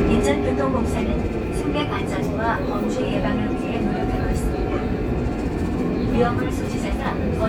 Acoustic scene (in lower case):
subway train